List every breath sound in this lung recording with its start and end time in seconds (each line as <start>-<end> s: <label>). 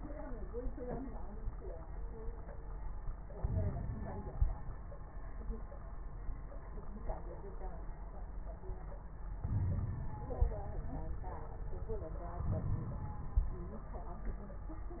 3.35-4.45 s: inhalation
3.35-4.45 s: crackles
9.47-10.03 s: wheeze
9.47-10.73 s: inhalation
12.43-13.58 s: inhalation
12.43-13.58 s: crackles